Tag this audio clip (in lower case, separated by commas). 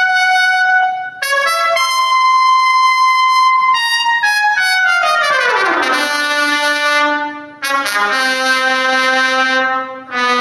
music